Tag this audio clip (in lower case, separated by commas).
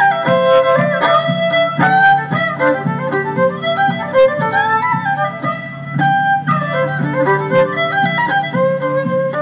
music, musical instrument, violin